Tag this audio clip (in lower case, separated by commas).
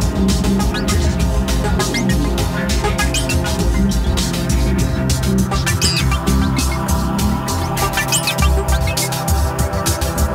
electronic music, music